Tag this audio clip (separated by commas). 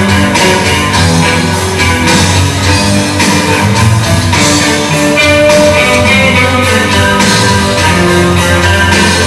Musical instrument, Guitar, Music, Electric guitar, Plucked string instrument, Acoustic guitar